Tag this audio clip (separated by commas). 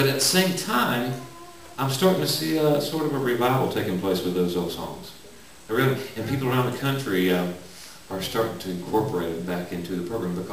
Speech